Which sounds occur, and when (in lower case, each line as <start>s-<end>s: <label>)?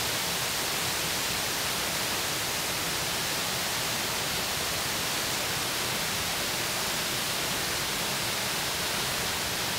0.0s-9.7s: waterfall
0.0s-9.7s: wind